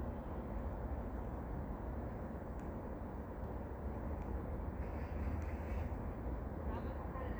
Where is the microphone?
in a park